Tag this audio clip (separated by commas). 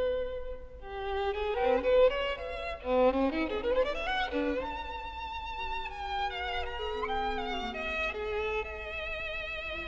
Music, fiddle, Musical instrument